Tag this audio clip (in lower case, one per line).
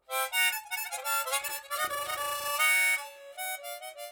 harmonica
music
musical instrument